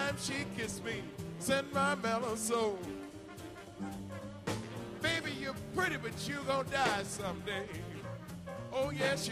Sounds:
music

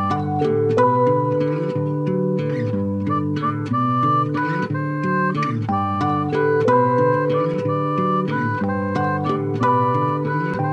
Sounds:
music

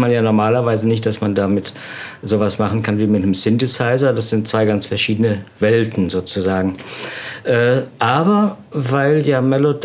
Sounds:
speech
groan

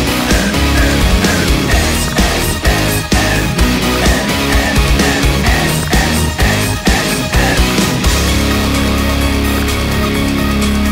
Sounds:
music
heavy metal

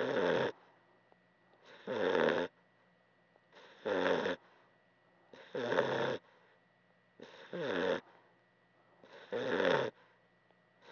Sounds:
snoring

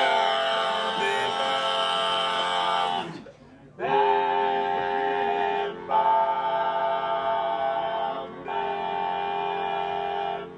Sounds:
male singing

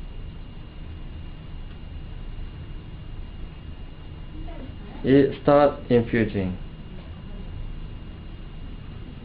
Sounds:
speech

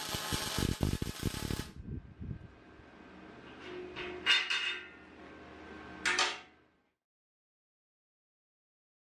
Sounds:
arc welding

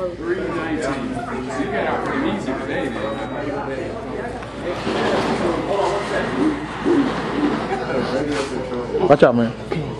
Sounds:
speech

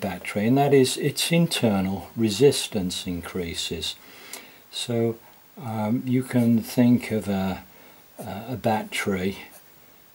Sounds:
speech

